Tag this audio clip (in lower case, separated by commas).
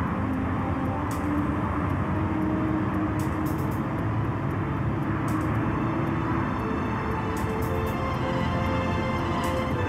music